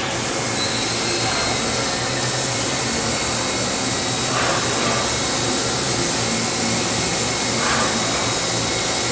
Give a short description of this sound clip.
Hissing and clinking with vibrations